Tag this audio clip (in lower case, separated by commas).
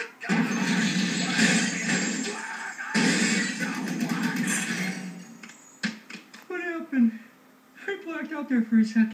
music, speech